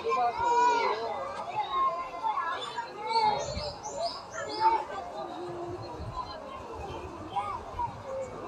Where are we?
in a park